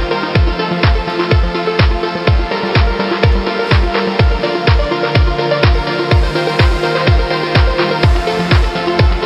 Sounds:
Music

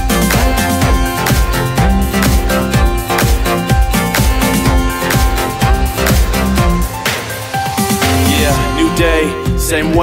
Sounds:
Jingle (music), Dance music, Music

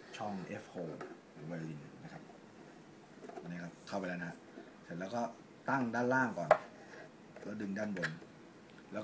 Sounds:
Speech

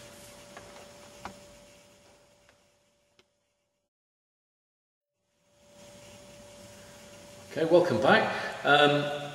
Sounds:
Speech

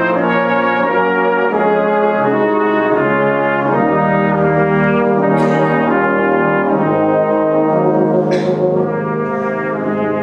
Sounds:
playing cornet

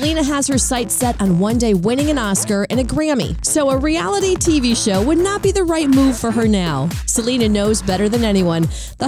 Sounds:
Speech, Music

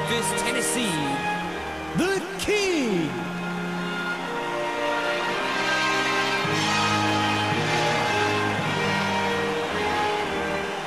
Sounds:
Music, Speech

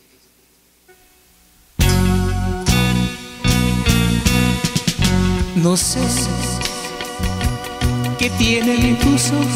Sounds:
Singing, Musical instrument, Guitar, Music

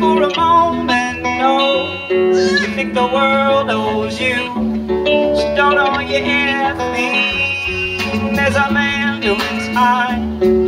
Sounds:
Music

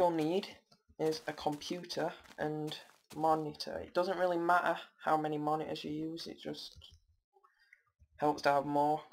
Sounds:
Speech

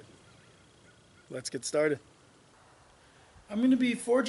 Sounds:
Speech

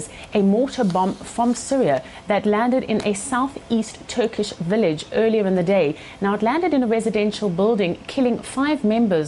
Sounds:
Speech

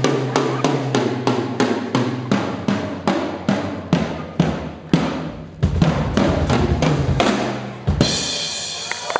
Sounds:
Musical instrument, Drum, Drum kit, Snare drum, Bass drum, Cymbal, Hi-hat, Percussion, Music

